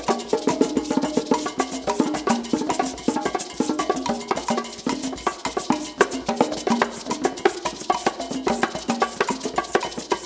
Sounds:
Percussion, Wood block, Music

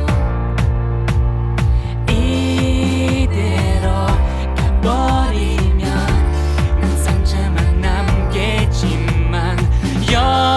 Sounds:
Music

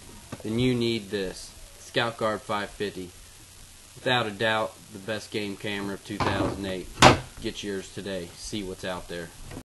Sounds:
Speech

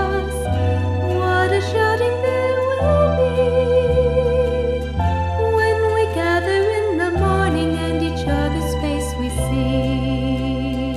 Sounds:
Music, Tender music

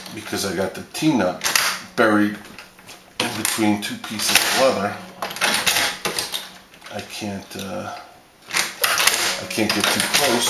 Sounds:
Sewing machine, Speech

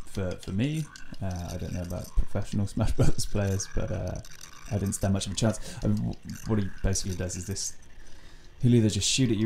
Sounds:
Speech

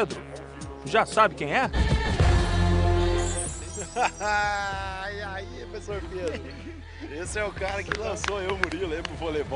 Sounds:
playing volleyball

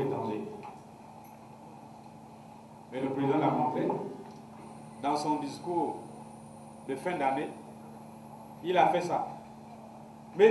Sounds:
Speech

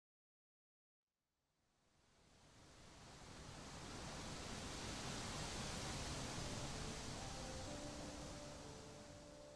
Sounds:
Silence

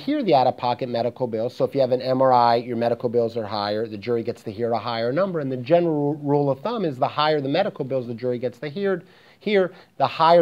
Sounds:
Speech

